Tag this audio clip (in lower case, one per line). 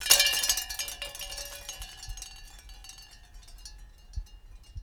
chime
wind chime
bell